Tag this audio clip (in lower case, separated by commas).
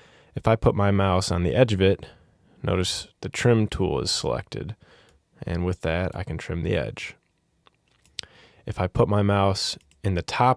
speech